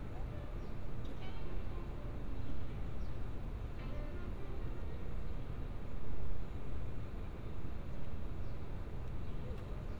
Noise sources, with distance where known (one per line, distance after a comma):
music from a fixed source, far